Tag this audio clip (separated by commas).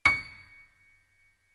Musical instrument, Keyboard (musical), Piano, Music